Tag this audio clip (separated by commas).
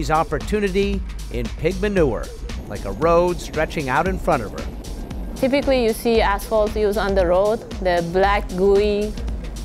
Speech, Music